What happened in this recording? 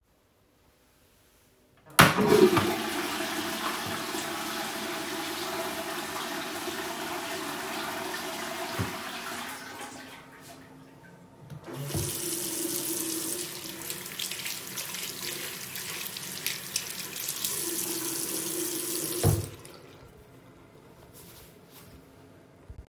I flushed the toilet and then open water tap, washy hand and then close tap.